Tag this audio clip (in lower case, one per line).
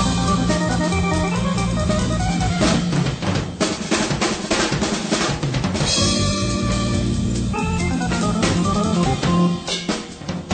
rimshot
bass drum
drum kit
percussion
drum
drum roll
snare drum